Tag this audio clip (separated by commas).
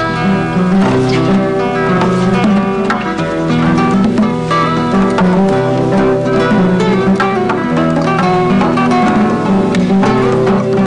Music